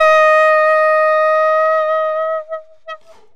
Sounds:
music
woodwind instrument
musical instrument

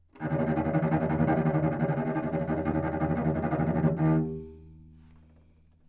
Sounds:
music
musical instrument
bowed string instrument

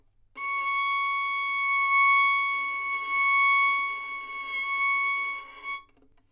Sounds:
musical instrument
bowed string instrument
music

